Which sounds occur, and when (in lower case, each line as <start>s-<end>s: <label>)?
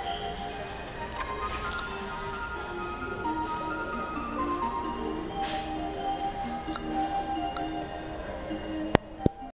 0.0s-9.5s: alarm clock
0.0s-9.5s: background noise
1.2s-1.2s: tick
1.4s-1.5s: tick
1.7s-1.8s: tick
2.0s-2.4s: squeal
3.4s-3.7s: surface contact
5.4s-5.7s: surface contact
6.7s-6.8s: tick
7.5s-7.6s: tick
8.9s-8.9s: tick
9.2s-9.3s: tick